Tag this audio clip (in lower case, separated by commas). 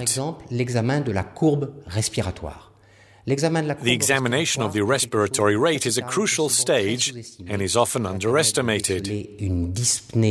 speech